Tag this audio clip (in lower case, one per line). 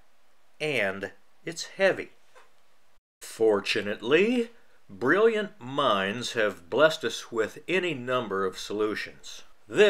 speech